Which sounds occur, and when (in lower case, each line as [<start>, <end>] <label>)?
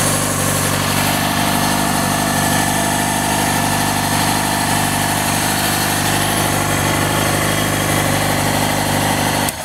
[0.00, 9.51] engine knocking
[0.00, 9.51] idling
[0.00, 9.64] motorcycle
[0.00, 9.64] wind
[9.42, 9.64] generic impact sounds